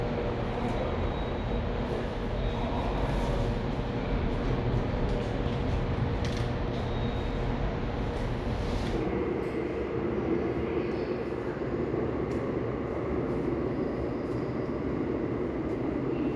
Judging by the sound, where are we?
in a subway station